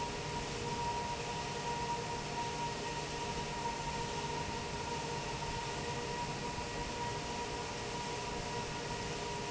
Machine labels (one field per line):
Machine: fan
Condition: normal